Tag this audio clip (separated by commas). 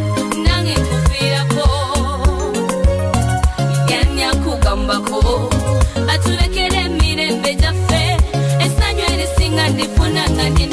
Music, Funk, Dance music, Background music, Electronic music